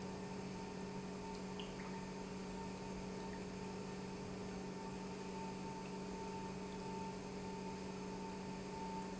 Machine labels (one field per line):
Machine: pump